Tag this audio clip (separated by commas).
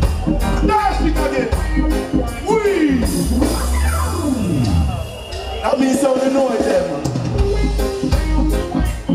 Music, Traditional music